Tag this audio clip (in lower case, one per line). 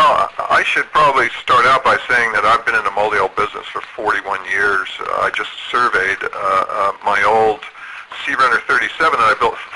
speech